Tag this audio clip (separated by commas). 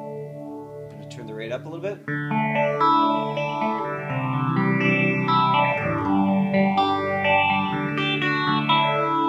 Guitar, Distortion, Reverberation, Effects unit, Music, Echo, Speech